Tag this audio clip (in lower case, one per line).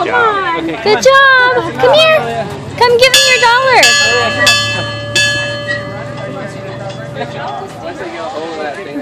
jingle bell
vehicle
speech